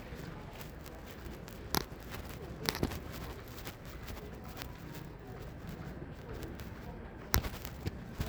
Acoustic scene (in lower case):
residential area